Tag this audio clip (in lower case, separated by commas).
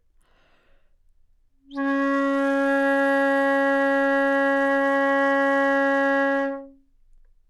wind instrument, music, musical instrument